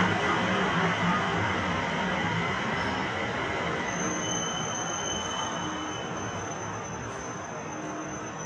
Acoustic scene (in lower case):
subway station